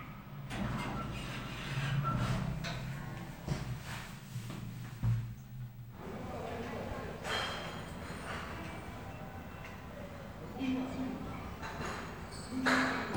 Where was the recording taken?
in an elevator